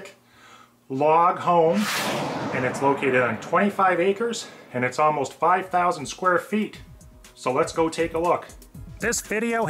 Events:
[0.00, 0.22] generic impact sounds
[0.00, 9.65] music
[0.25, 0.81] breathing
[0.90, 1.80] man speaking
[1.68, 3.43] sound effect
[2.53, 4.50] man speaking
[4.77, 6.87] man speaking
[7.21, 8.63] man speaking
[9.01, 9.65] man speaking

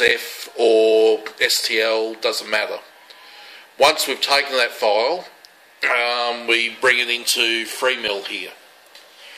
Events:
[0.00, 2.92] male speech
[0.00, 9.35] mechanisms
[0.62, 0.72] tick
[1.25, 1.32] tick
[2.09, 2.17] tick
[3.05, 3.13] tick
[3.23, 3.66] breathing
[3.78, 5.33] male speech
[5.40, 5.47] tick
[5.82, 8.54] male speech
[8.86, 9.35] surface contact

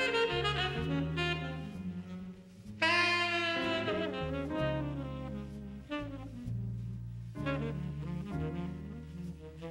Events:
[0.00, 9.70] background noise
[0.00, 9.70] music

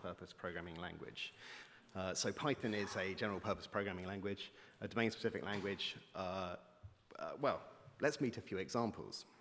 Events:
[0.00, 1.35] man speaking
[0.00, 9.40] background noise
[0.74, 0.79] tick
[1.36, 1.84] breathing
[1.63, 1.71] tick
[1.89, 1.95] tick
[1.90, 4.52] man speaking
[2.68, 3.21] breathing
[4.02, 4.07] tick
[4.54, 4.85] breathing
[4.81, 6.85] man speaking
[5.53, 5.60] generic impact sounds
[6.81, 6.89] tap
[7.10, 7.68] man speaking
[7.71, 7.97] breathing
[8.05, 9.29] man speaking

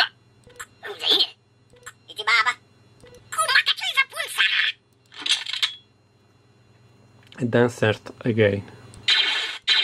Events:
[0.00, 0.14] speech synthesizer
[0.00, 9.83] mechanisms
[0.48, 0.63] alarm
[0.51, 0.65] clicking
[0.83, 1.38] speech synthesizer
[1.75, 1.93] alarm
[1.77, 1.92] clicking
[2.08, 2.60] speech synthesizer
[3.06, 3.20] alarm
[3.07, 3.21] clicking
[3.34, 4.78] speech synthesizer
[4.94, 5.11] clicking
[5.15, 5.76] generic impact sounds
[7.23, 7.47] clicking
[7.41, 8.10] man speaking
[8.25, 8.62] man speaking
[8.57, 8.93] breathing
[8.90, 8.99] clicking
[9.11, 9.61] sound effect
[9.70, 9.83] sound effect

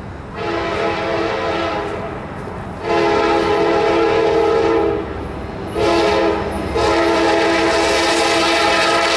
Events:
[0.00, 9.15] train
[0.31, 2.16] train horn
[2.75, 5.11] train horn
[5.68, 6.50] train horn
[6.70, 9.15] train horn

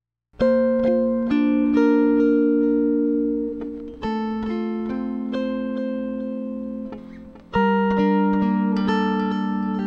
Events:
[0.29, 9.85] music

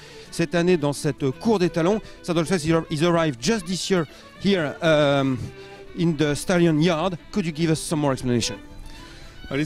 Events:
[0.00, 0.26] breathing
[0.00, 9.65] music
[0.29, 1.94] man speaking
[0.33, 9.65] conversation
[1.99, 2.21] breathing
[2.35, 4.01] man speaking
[4.06, 4.31] breathing
[4.39, 5.44] man speaking
[5.36, 5.85] breathing
[5.89, 7.08] man speaking
[7.32, 8.60] man speaking
[8.80, 9.42] breathing

